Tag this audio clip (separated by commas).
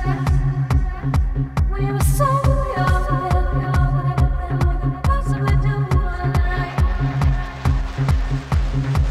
Music